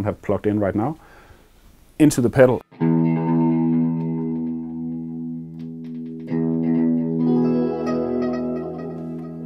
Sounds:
Plucked string instrument, Effects unit, Music, Guitar, Reverberation, Musical instrument, Speech

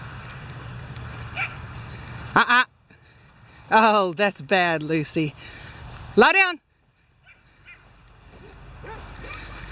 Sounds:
Speech, Animal, Dog, Domestic animals

